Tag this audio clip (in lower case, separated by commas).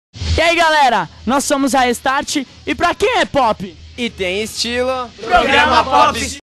speech